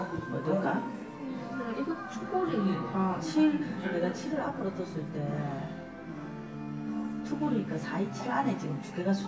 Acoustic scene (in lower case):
crowded indoor space